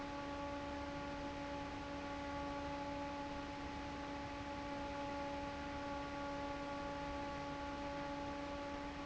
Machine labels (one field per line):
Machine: fan